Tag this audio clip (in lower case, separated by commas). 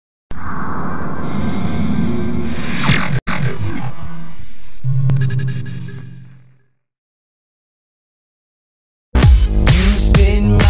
electronic music, disco, music